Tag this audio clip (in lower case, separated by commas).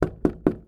door, domestic sounds, knock